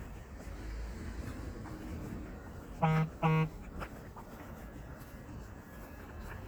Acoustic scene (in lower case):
street